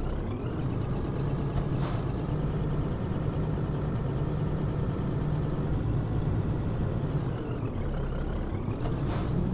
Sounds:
Truck

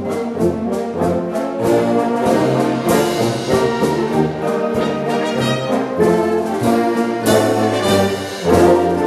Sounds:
Trumpet, French horn, Musical instrument, Orchestra, Brass instrument, Classical music, Music

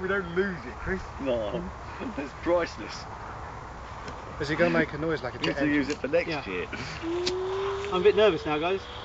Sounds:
Speech

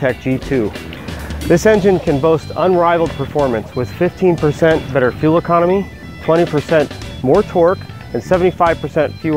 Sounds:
Music, Speech

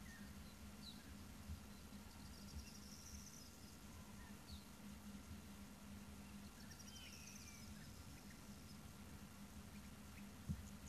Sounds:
Bird, Animal

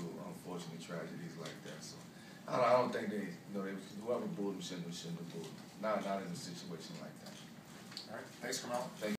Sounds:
Speech

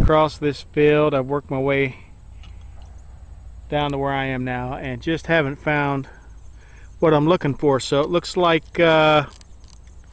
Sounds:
Speech

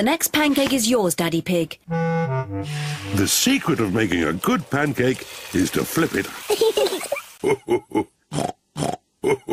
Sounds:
Music, Speech, inside a small room, Grunt

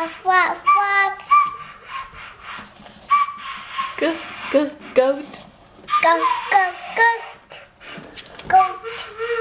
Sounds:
Speech, Child singing

